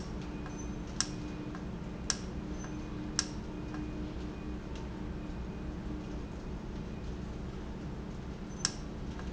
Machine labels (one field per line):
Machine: valve